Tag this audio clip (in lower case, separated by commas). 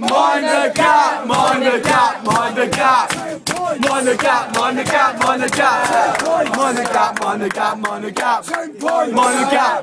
male singing